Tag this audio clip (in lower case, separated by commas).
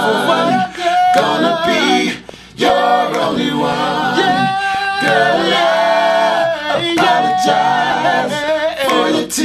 choir